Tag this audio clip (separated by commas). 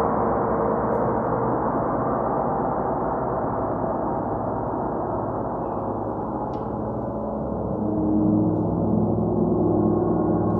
playing gong